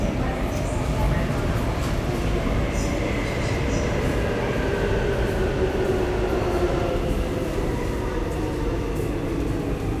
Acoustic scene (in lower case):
subway station